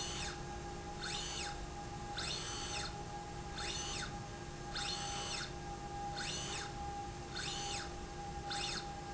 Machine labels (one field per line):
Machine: slide rail